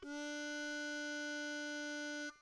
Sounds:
musical instrument, music, harmonica

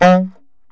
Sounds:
music, musical instrument, woodwind instrument

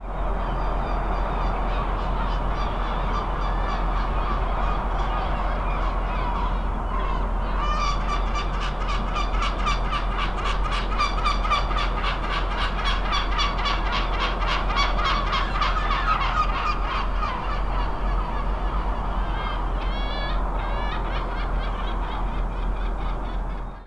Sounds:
animal, wild animals, seagull, bird

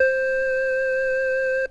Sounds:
musical instrument, keyboard (musical), music

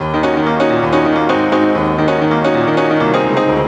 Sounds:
piano, musical instrument, music, keyboard (musical)

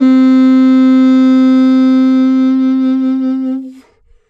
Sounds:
music, wind instrument, musical instrument

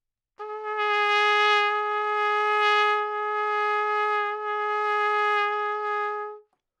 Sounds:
music, trumpet, musical instrument, brass instrument

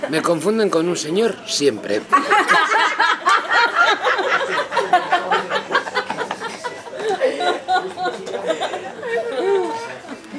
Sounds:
laughter, human voice

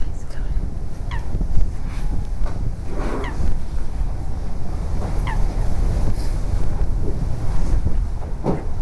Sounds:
wild animals, animal, bird

